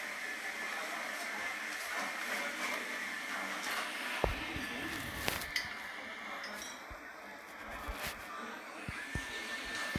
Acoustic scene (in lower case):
cafe